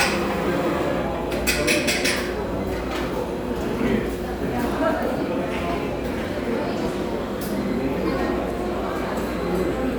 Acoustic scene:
cafe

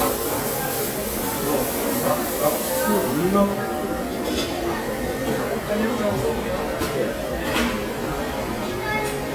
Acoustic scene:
restaurant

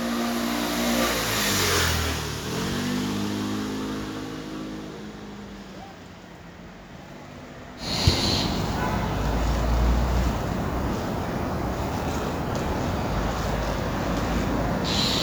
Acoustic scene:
street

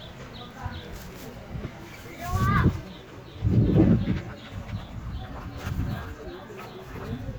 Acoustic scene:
park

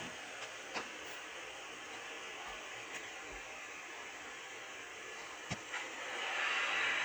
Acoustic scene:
subway train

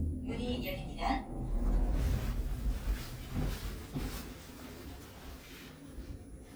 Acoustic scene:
elevator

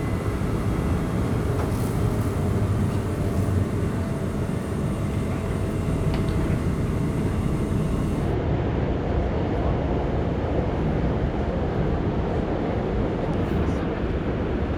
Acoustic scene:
subway train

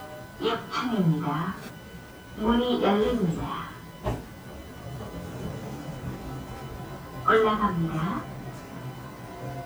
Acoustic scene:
elevator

